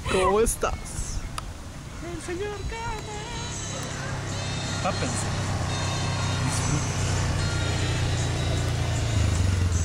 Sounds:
Speech, Music

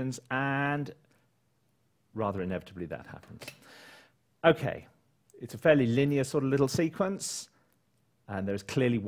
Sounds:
Speech

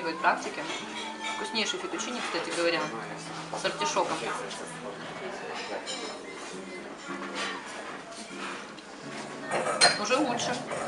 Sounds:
eating with cutlery

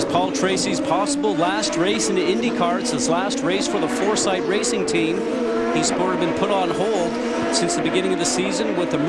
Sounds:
Speech, Vehicle, Car

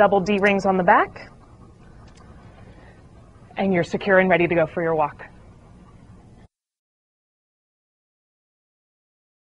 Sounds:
Speech

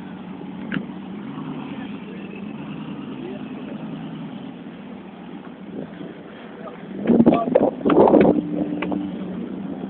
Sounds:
Rustle, Speech

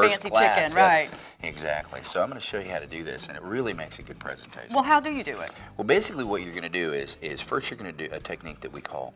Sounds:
Speech

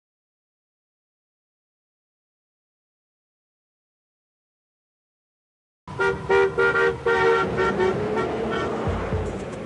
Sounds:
car horn, Music

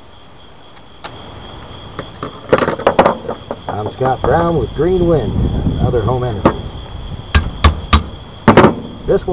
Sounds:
Wind noise (microphone), Wind

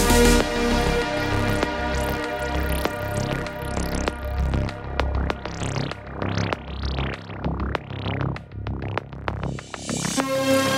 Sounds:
barn swallow calling

